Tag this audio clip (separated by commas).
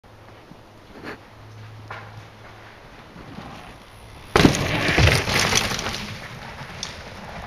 Vehicle, Bicycle